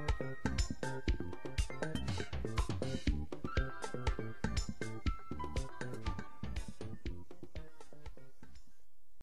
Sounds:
Music

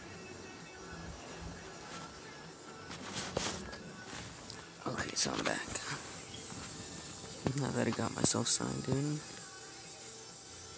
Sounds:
Speech, Music, inside a small room

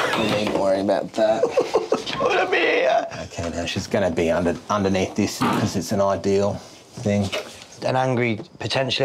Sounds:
Speech

